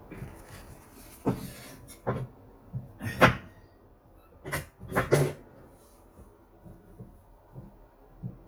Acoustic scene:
kitchen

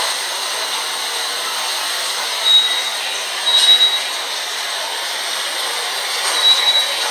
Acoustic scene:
subway station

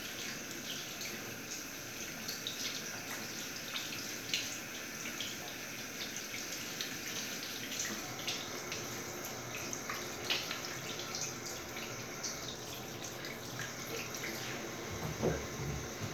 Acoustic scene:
restroom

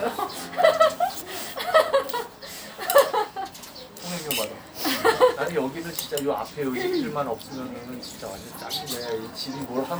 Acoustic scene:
restaurant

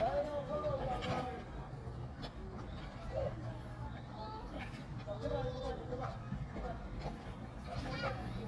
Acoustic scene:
park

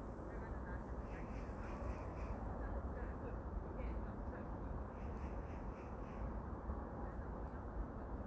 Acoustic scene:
park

